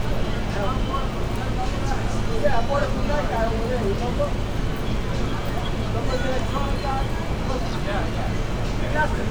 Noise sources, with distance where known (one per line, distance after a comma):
unidentified human voice